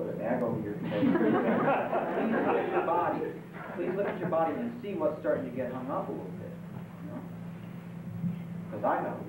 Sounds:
Male speech

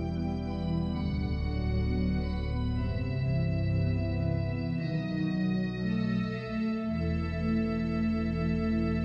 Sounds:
playing electronic organ

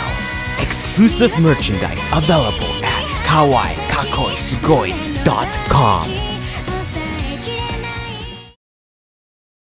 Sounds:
Music, Speech

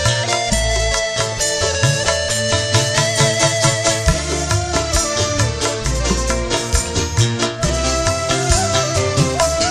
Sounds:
Soundtrack music, Music

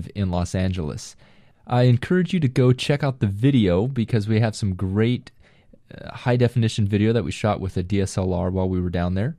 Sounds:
Speech

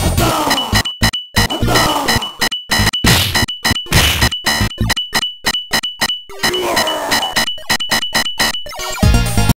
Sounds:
tinkle

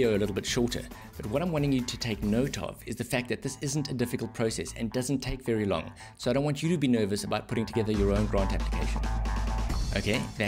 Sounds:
Speech, Music

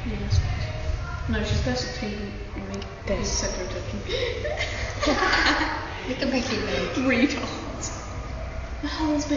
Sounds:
Speech

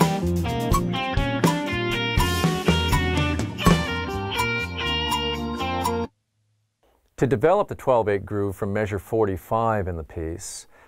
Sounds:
Music, Speech, Musical instrument, inside a small room, Drum kit, Drum

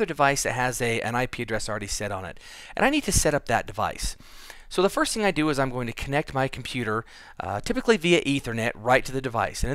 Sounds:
Speech

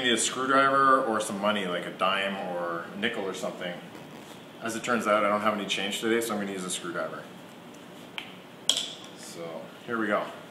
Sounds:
Speech

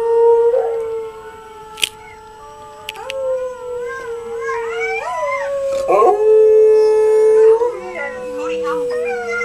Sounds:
dog howling

